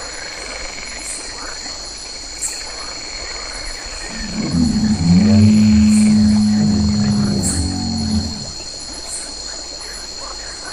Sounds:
Animal

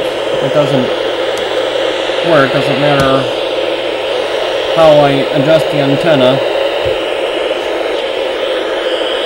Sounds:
Speech, Radio

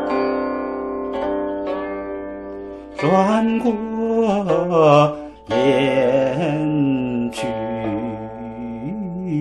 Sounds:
Music, Traditional music

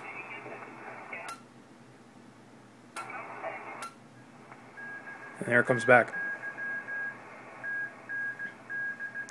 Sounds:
Speech, Radio

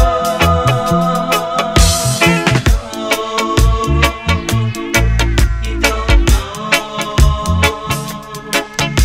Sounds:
Music, Music of Africa, Afrobeat, Reggae

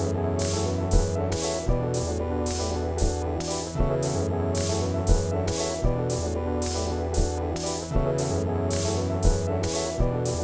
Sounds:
Synthesizer, Music

